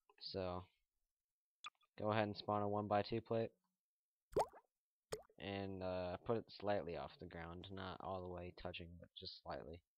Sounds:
Speech

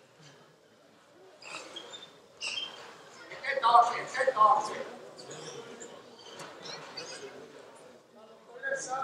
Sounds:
Speech

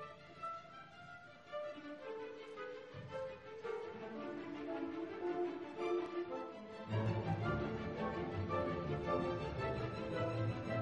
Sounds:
Music

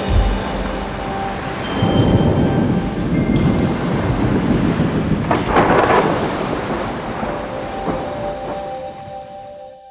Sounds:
Wind, Waves, Wind noise (microphone)

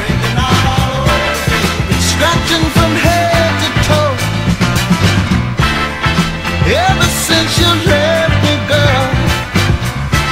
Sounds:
Music

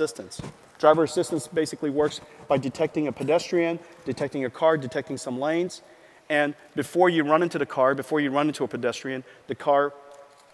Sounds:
Speech

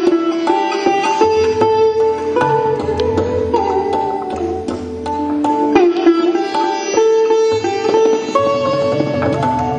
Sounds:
Sitar, Music

